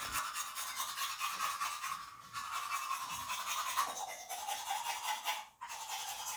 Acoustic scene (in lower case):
restroom